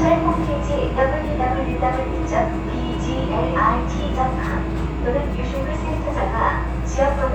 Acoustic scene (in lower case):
subway train